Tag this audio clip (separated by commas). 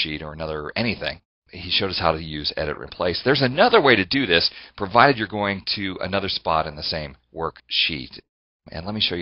Speech